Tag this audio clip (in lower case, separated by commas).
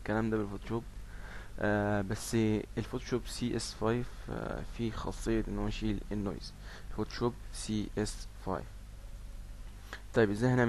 speech